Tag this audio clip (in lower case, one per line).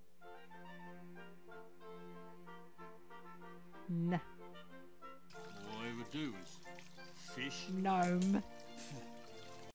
speech
television
music